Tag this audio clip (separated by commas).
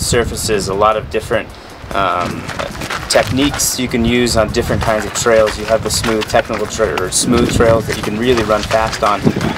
Run, Speech, Music